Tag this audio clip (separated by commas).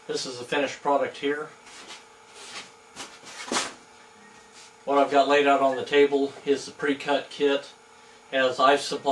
Speech